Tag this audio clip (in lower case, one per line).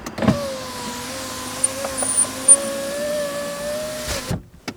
motor vehicle (road)
car
vehicle